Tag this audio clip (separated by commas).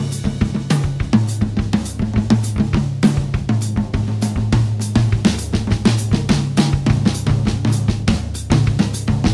Hi-hat